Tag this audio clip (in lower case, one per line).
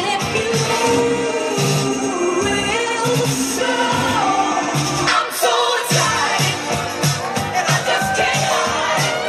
disco